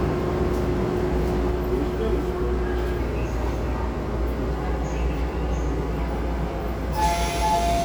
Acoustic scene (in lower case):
subway train